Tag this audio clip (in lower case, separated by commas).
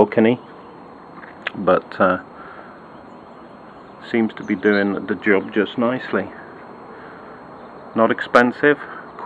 outside, urban or man-made, speech